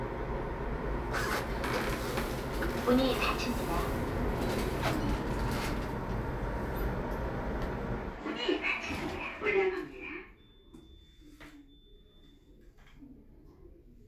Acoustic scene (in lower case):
elevator